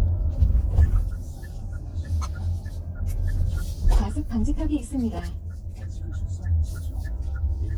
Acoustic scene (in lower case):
car